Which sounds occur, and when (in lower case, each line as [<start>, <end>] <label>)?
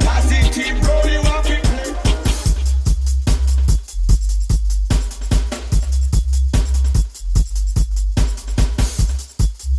[0.00, 2.02] male singing
[0.00, 9.75] music